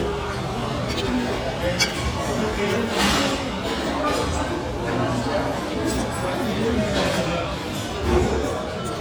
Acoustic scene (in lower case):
restaurant